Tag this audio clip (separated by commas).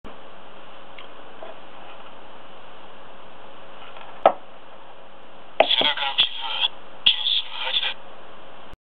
Speech